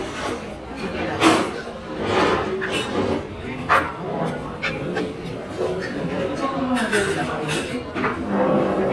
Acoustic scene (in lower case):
restaurant